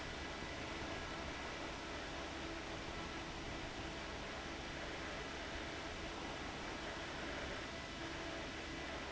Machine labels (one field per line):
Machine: fan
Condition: abnormal